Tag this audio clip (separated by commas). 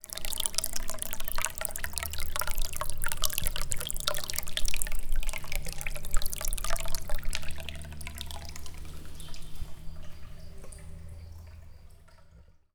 Liquid